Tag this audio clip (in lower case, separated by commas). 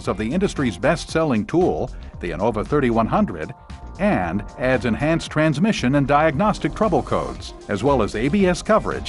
speech, music